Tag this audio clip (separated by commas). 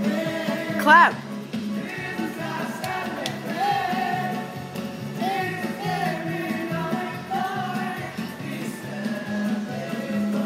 Music, Male singing, Speech